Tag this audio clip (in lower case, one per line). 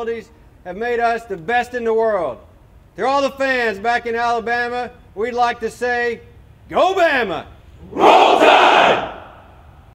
speech
bellow